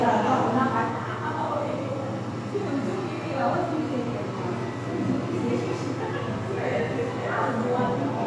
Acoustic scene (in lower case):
crowded indoor space